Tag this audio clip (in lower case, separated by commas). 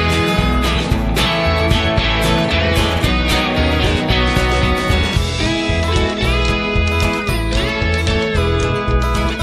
music